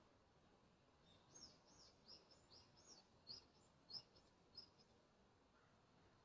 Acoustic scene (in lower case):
park